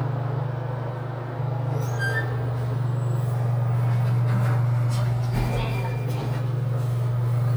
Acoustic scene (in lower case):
elevator